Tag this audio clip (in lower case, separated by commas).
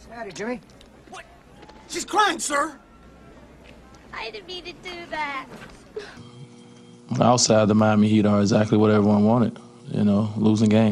speech